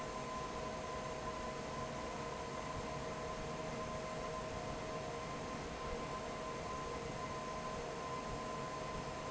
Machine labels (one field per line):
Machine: fan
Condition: normal